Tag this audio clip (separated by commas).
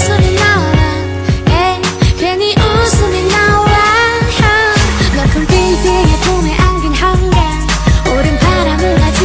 Music